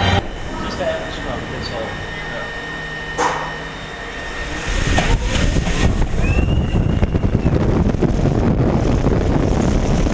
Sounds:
Speech, outside, rural or natural

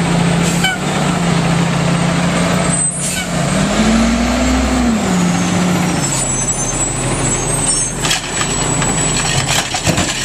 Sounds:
Vehicle, Air brake, Truck

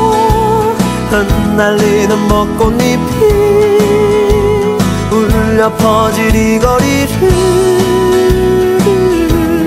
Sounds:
Music, Exciting music

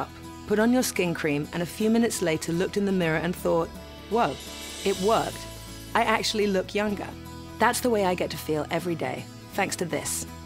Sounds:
Music, Speech

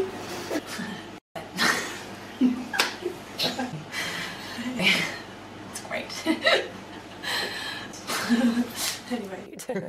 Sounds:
Speech, chortle

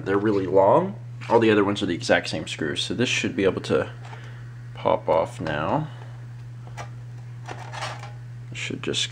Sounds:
inside a small room, Speech

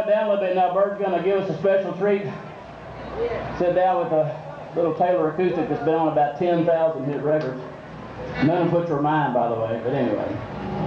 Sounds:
Speech

